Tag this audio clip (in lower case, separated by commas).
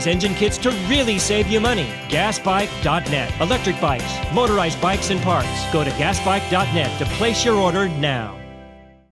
music, speech